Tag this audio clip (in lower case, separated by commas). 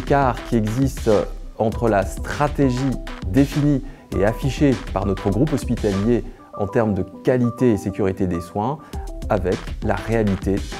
music, speech